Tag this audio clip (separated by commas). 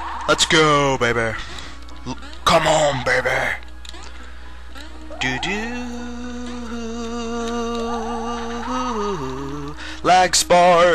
Music, Speech